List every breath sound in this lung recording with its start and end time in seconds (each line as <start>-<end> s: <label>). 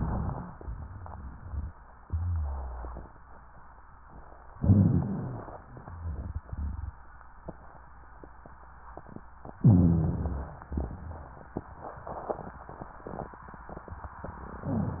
4.54-5.62 s: rhonchi
4.55-5.64 s: inhalation
9.64-10.72 s: inhalation
9.64-10.72 s: rhonchi